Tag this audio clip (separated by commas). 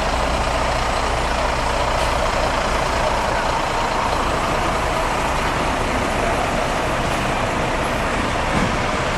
Motor vehicle (road), Traffic noise, Truck, Vehicle